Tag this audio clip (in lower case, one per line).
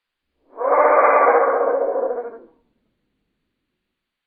animal